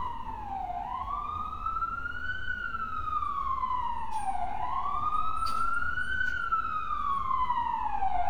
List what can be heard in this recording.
siren